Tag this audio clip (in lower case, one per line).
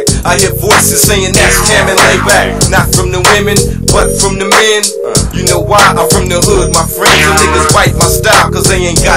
music
singing